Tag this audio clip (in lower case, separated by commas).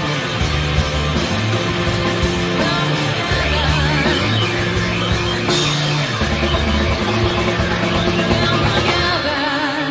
singing, punk rock, music